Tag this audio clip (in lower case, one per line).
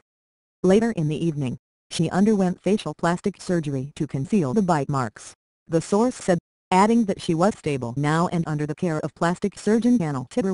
speech